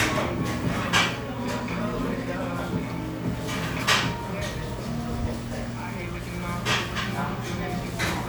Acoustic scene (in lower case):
restaurant